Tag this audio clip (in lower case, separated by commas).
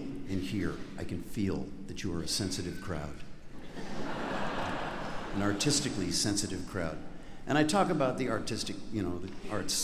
speech